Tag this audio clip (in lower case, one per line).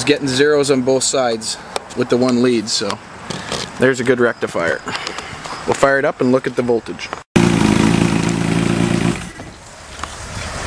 vehicle
speech